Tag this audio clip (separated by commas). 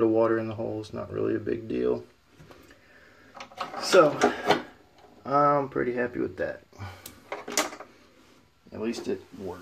Speech